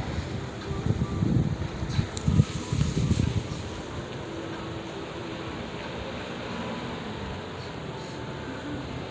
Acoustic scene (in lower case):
street